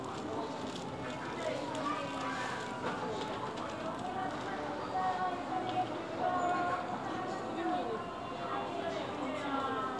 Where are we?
in a crowded indoor space